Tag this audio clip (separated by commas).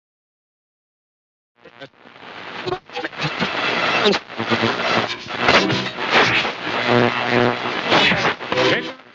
Speech